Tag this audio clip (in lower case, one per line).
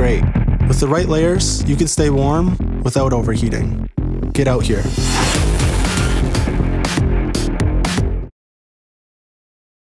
speech
music